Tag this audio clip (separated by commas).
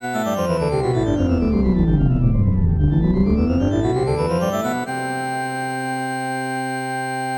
Keyboard (musical), Organ, Music, Musical instrument